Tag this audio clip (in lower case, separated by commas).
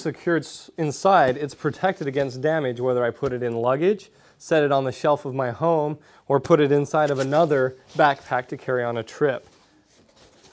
speech